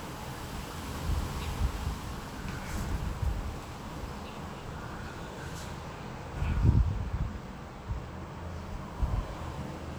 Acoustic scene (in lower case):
residential area